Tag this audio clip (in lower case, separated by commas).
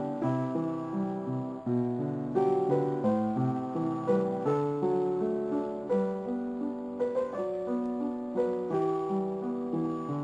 music